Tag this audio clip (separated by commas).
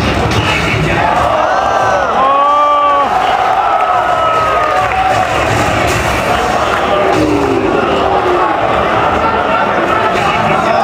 Cheering, Crowd